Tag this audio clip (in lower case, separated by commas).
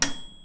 bell, microwave oven, domestic sounds